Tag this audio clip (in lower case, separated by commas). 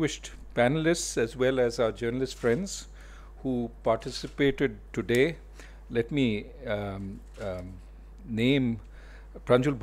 narration, male speech, speech